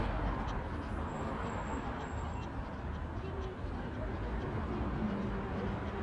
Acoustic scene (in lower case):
residential area